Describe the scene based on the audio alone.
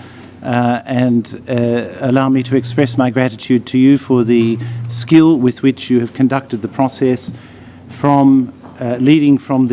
Man presenting a speech